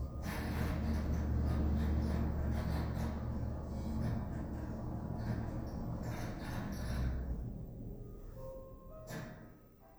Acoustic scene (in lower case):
elevator